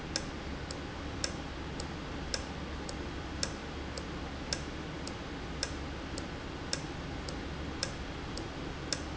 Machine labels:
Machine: valve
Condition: normal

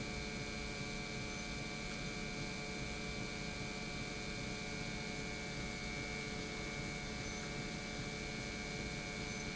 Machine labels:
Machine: pump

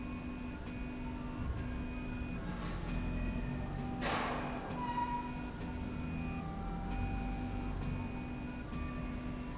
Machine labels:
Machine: slide rail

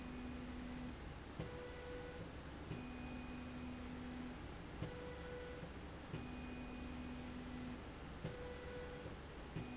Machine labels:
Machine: slide rail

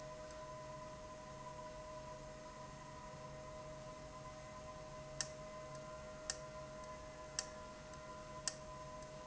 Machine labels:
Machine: valve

